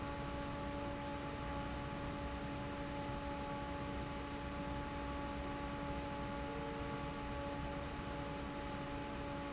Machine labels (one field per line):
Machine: fan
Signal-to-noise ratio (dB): 0 dB